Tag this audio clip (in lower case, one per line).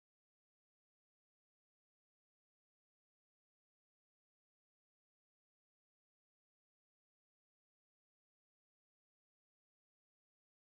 chimpanzee pant-hooting